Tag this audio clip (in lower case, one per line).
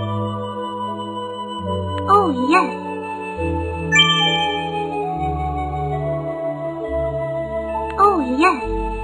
child speech